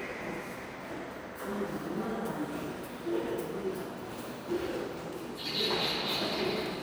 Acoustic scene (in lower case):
subway station